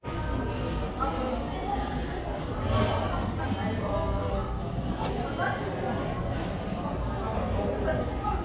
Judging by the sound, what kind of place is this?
cafe